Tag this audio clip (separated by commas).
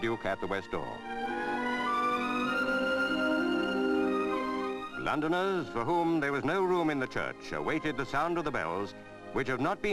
Music, Speech